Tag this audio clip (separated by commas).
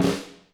Music, Snare drum, Musical instrument, Drum, Percussion